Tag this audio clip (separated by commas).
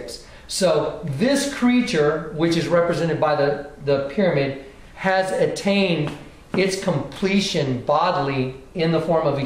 Speech, inside a small room